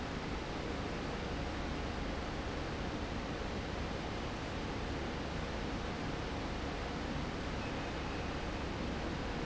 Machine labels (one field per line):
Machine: fan